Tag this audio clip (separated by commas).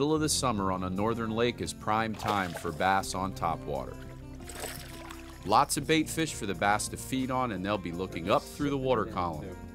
Speech, Pour, Music